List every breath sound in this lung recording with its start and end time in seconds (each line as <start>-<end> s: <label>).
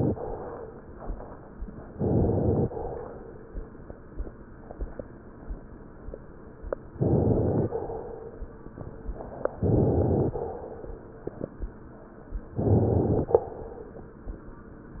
1.90-2.68 s: inhalation
6.95-7.76 s: inhalation
9.62-10.36 s: inhalation
12.54-13.37 s: inhalation